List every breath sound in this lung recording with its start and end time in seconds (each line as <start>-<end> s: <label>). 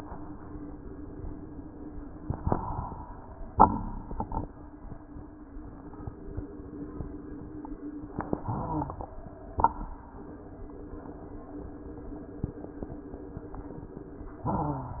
2.24-3.51 s: inhalation
2.24-3.51 s: crackles
3.55-4.54 s: exhalation
3.55-4.54 s: crackles
8.44-9.53 s: inhalation
8.44-9.53 s: crackles
9.58-10.55 s: exhalation
9.58-10.55 s: crackles